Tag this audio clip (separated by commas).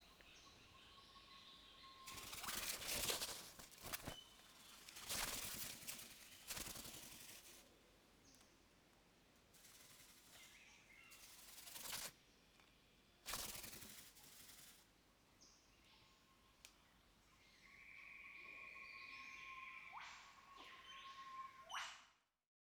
Bird, Wild animals, Animal